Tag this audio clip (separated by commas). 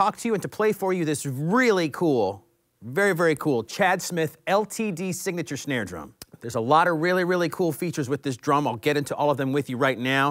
Speech